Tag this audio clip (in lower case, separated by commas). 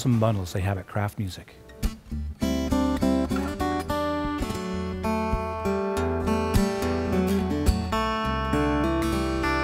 music, acoustic guitar